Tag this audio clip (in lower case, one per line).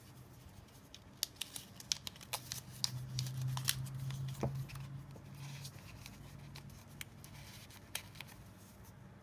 crackle